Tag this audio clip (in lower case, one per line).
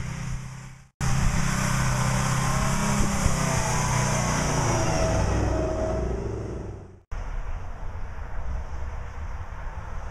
truck
vehicle